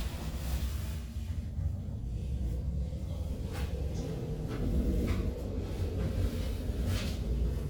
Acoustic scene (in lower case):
elevator